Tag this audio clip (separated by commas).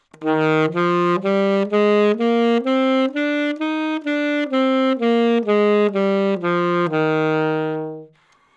Music, Musical instrument, woodwind instrument